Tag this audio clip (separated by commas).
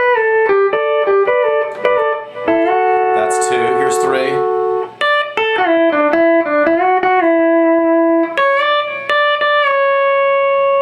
Music, slide guitar, Speech